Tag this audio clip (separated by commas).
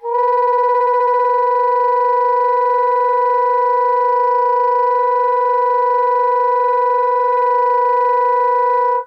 Musical instrument, Music, Wind instrument